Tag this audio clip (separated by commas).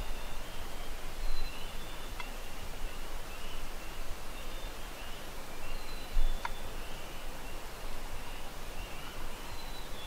Bird